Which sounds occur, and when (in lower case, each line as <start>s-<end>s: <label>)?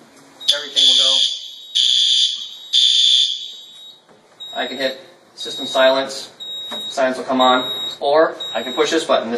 0.0s-9.3s: mechanisms
0.1s-0.2s: generic impact sounds
0.3s-1.1s: beep
0.4s-0.6s: generic impact sounds
0.4s-1.4s: man speaking
0.4s-1.4s: fire alarm
1.3s-1.8s: beep
1.7s-2.4s: fire alarm
2.3s-2.7s: beep
2.7s-3.5s: fire alarm
3.4s-3.9s: beep
3.4s-3.6s: generic impact sounds
4.0s-4.4s: generic impact sounds
4.3s-4.9s: beep
4.5s-5.1s: man speaking
5.4s-5.9s: beep
5.4s-6.3s: man speaking
6.3s-7.0s: beep
6.6s-6.8s: generic impact sounds
6.8s-7.7s: man speaking
7.4s-8.0s: beep
7.9s-9.3s: man speaking
8.3s-8.9s: beep